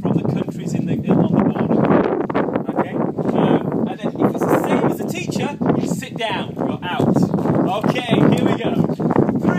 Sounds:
Speech

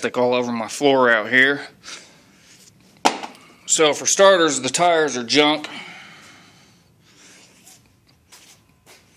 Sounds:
Speech

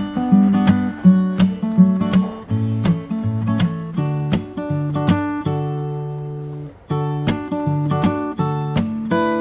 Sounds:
Plucked string instrument, Acoustic guitar, Strum, Musical instrument, Guitar, Music

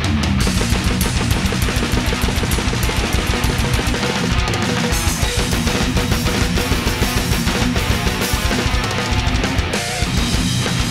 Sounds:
Musical instrument, Music, Drum kit, Drum

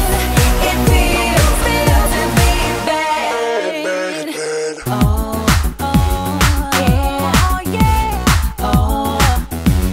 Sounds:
Music

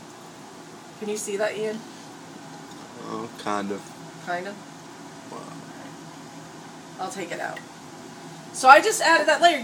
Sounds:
Speech

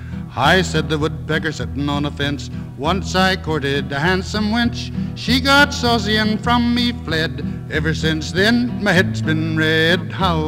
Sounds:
Music

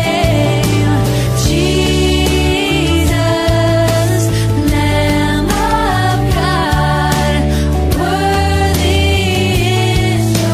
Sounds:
Music, Christian music

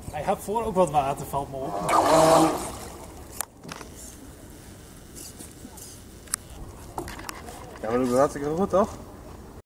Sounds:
speedboat, Speech

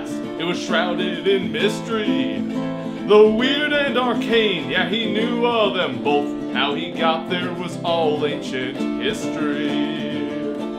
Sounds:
Music

